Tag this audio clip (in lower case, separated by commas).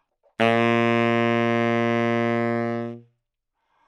woodwind instrument, music, musical instrument